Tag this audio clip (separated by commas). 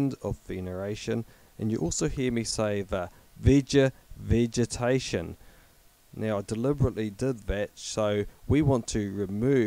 Speech